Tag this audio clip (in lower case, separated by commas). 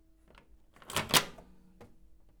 microwave oven, domestic sounds